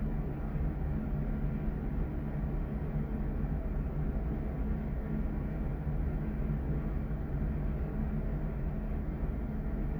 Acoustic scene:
elevator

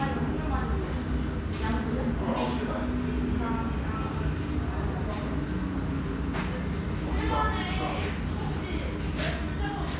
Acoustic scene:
restaurant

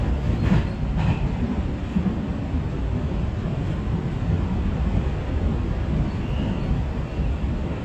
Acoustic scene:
subway train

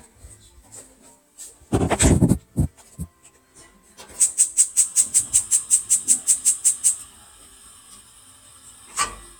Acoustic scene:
kitchen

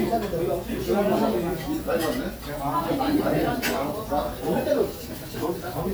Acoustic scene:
crowded indoor space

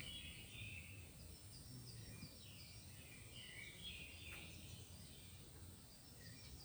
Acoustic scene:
park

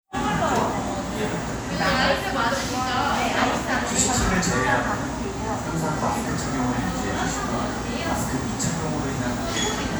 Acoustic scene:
crowded indoor space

